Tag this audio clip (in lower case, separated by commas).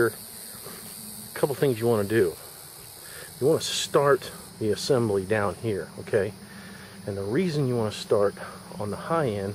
cricket, insect